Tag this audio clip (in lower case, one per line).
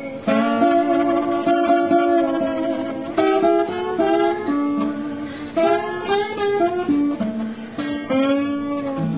guitar
music
strum
musical instrument
plucked string instrument